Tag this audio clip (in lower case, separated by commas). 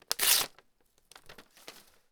tearing